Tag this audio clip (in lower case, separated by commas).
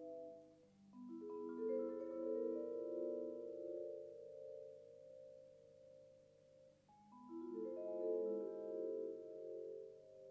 vibraphone, musical instrument, music